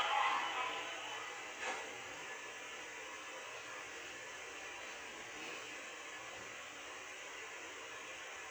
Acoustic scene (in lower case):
subway train